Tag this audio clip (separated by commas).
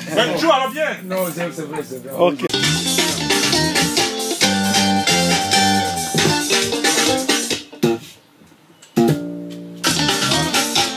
Speech, Music